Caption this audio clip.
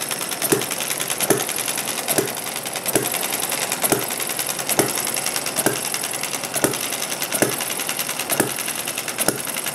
Steady clicking sounds like a telegraph or sewing machine with even paced thuds on a hard surface